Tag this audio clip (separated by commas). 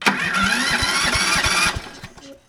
Engine starting, Engine